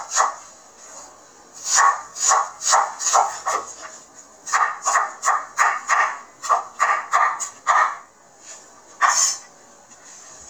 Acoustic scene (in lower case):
kitchen